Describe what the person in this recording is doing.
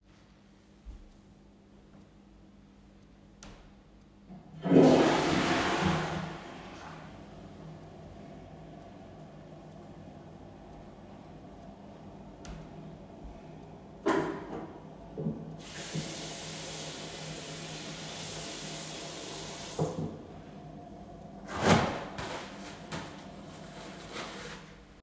I flushed the toilet and washed my hands using soap from the soap dispenser. After washing my hands, I dried them with the tissue paper